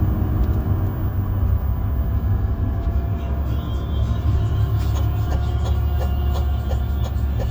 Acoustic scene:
bus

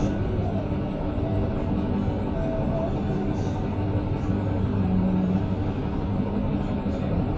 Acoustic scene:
bus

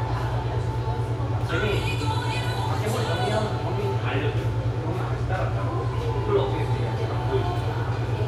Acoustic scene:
cafe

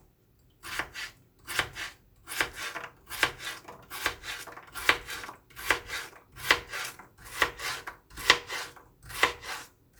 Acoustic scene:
kitchen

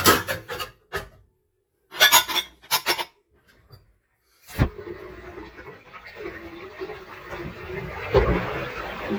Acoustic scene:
kitchen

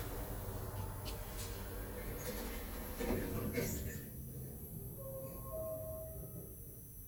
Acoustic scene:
elevator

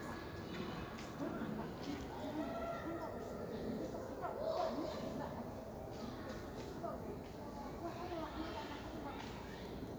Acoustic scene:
park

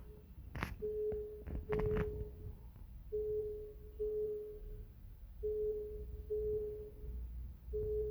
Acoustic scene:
elevator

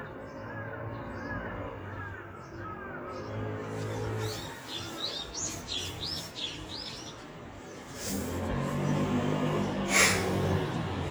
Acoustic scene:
residential area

